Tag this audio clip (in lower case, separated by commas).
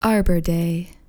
speech, woman speaking, human voice